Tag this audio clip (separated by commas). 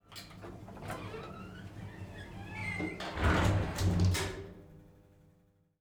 home sounds, Sliding door, Door